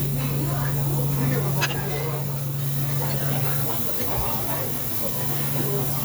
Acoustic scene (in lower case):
restaurant